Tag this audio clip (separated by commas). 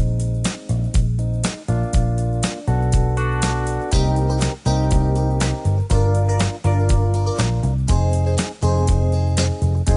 Music